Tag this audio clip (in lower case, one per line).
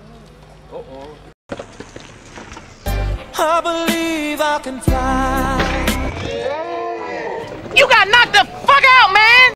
speech
music